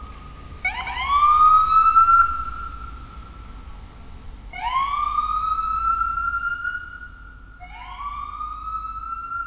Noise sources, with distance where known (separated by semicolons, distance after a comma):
siren, near